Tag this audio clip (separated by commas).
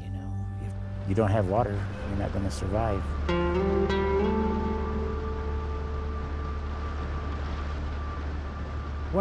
Gurgling, Music, Speech